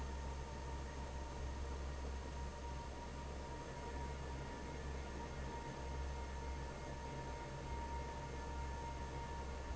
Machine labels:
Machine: fan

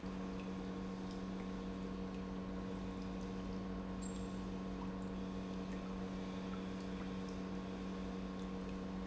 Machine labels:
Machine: pump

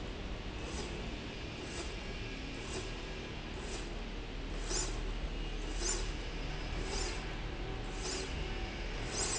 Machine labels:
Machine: slide rail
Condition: normal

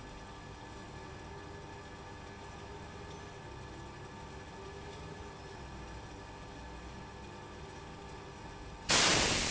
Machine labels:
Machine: pump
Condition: abnormal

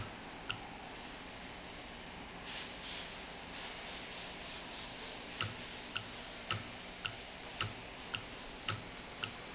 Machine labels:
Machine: valve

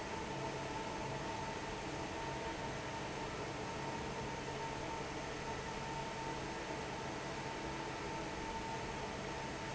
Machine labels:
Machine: fan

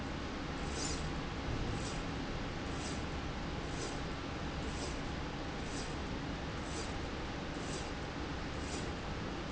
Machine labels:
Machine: slide rail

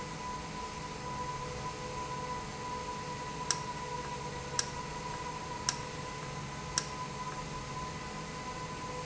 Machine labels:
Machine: valve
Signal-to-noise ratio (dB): -6 dB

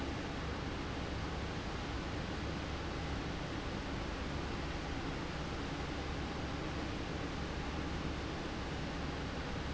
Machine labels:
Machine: fan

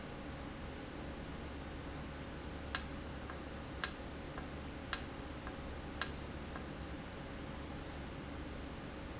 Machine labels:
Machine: valve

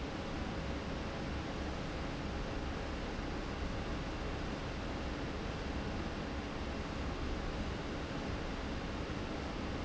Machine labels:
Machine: fan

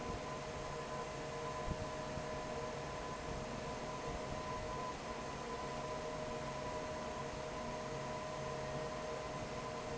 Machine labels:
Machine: fan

